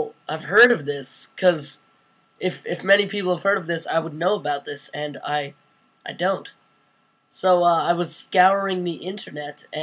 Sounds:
Speech

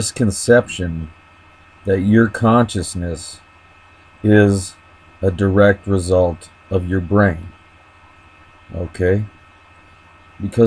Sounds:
Speech

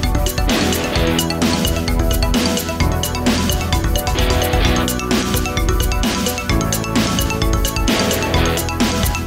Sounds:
Music

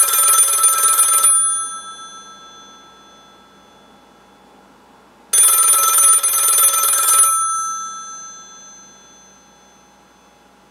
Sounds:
telephone bell ringing

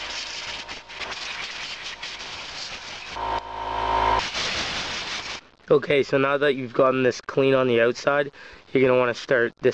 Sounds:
Power tool, Speech

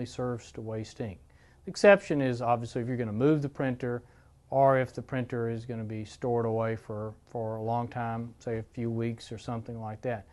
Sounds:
Speech

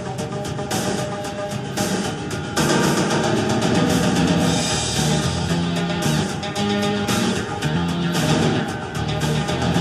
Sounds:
Music

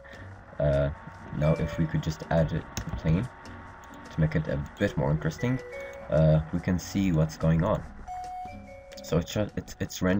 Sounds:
Harpsichord, Music, Speech

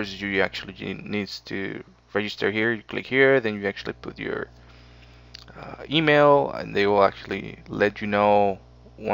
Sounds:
Speech

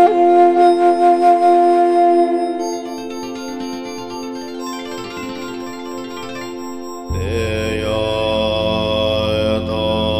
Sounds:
Mantra, Music

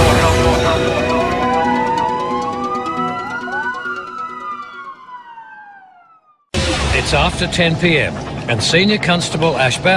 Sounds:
Police car (siren)

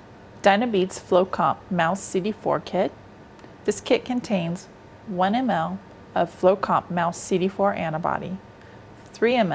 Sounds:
Speech

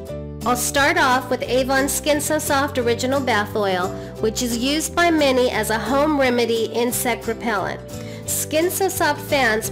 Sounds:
Music, Speech

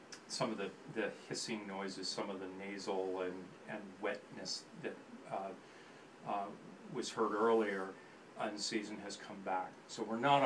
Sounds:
inside a small room, Speech

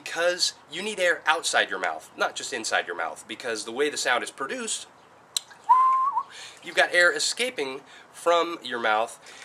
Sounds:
Whistling

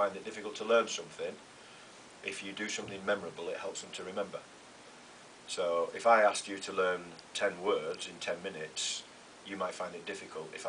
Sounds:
Rustle

